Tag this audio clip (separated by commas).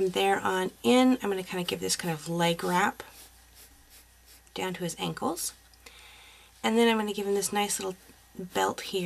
Speech, inside a small room